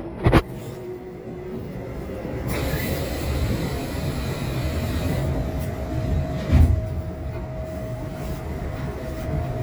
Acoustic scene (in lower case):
subway train